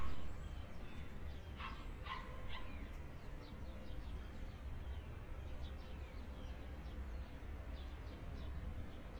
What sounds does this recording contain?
dog barking or whining